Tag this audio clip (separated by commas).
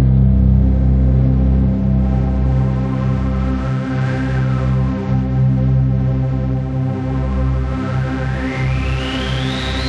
Music